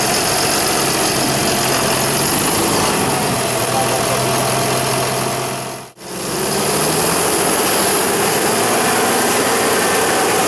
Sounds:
engine knocking, speech

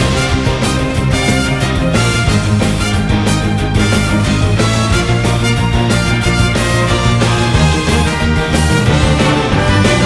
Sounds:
music

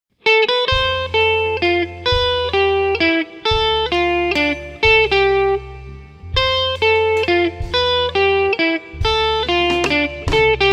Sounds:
christmas music, music, christian music

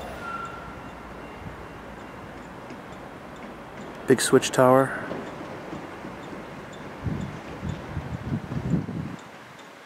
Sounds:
speech, train, wind, vehicle, railroad car, rail transport

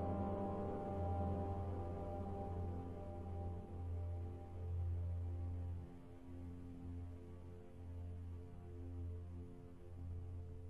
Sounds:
music

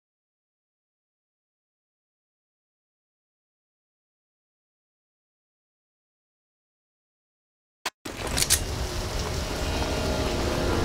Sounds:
music

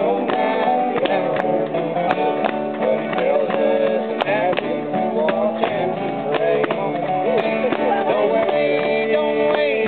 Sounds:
music

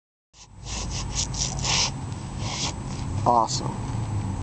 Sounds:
speech

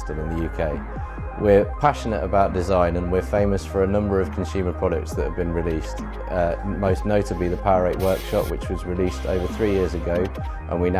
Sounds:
music, speech

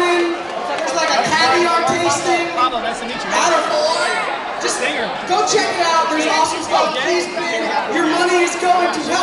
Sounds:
speech

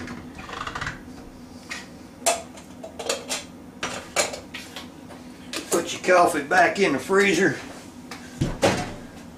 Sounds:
speech, inside a small room, dishes, pots and pans

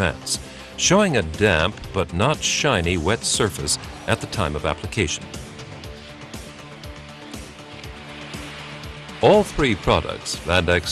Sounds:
spray, music, speech

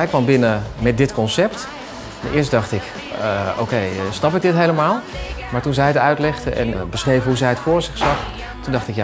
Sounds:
music, speech

